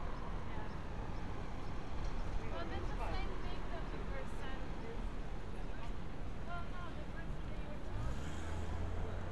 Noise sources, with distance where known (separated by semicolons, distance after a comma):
person or small group talking, far